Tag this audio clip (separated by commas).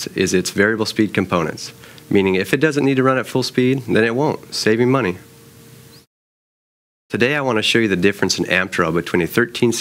Speech